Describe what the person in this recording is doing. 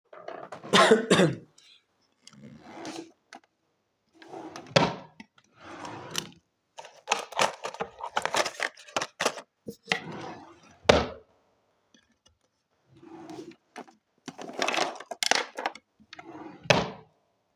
I opened my bedroom drawer, coughed while rummaging through it moving some small boxes, and then closed the drawer.